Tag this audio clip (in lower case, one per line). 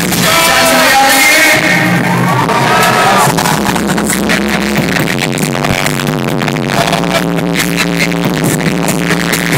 music
bang
speech